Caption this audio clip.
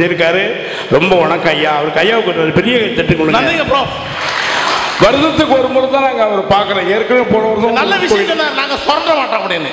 Man giving speech to crowd who applauds